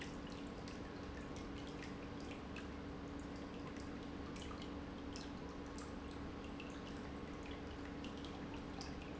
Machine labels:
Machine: pump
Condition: normal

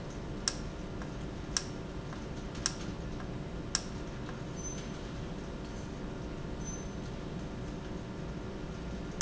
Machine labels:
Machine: valve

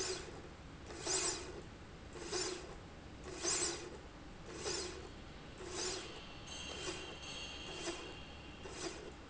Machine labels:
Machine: slide rail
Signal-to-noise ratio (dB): 6 dB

